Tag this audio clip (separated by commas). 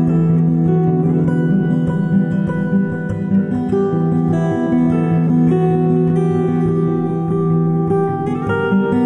Music, Plucked string instrument, Musical instrument, Acoustic guitar